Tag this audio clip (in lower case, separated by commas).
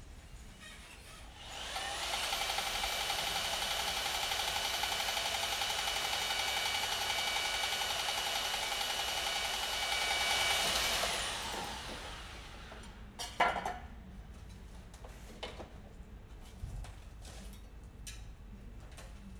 tools, sawing